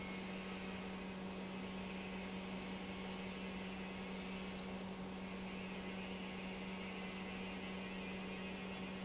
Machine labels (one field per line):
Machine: pump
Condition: normal